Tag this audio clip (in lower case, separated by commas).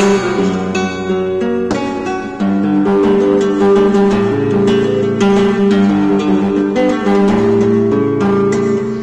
flamenco, musical instrument, playing acoustic guitar, acoustic guitar, guitar, plucked string instrument, strum, music